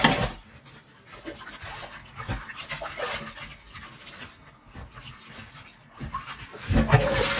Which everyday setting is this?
kitchen